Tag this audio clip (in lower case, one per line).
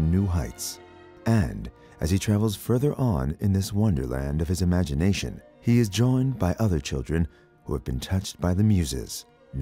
music
speech